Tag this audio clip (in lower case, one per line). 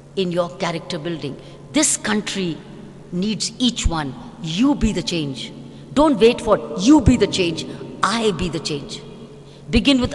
narration
speech
female speech